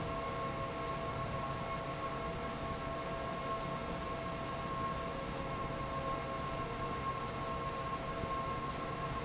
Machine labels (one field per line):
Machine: fan